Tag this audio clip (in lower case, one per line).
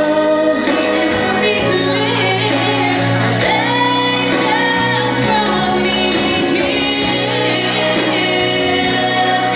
music
female singing